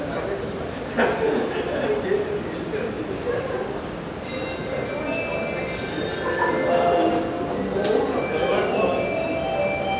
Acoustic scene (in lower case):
subway station